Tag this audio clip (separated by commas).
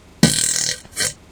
Fart